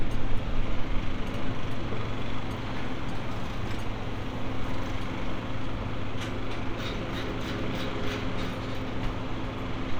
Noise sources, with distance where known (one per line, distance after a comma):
hoe ram